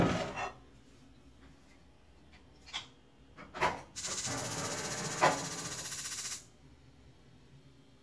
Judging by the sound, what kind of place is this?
kitchen